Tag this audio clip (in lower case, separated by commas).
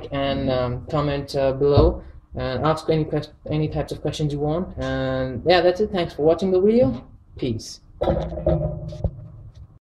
speech